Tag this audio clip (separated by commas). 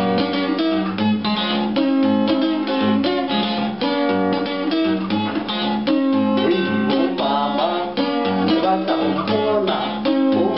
Guitar, Music, Acoustic guitar, Musical instrument, Plucked string instrument